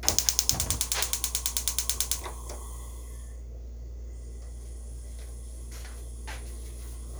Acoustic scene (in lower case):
kitchen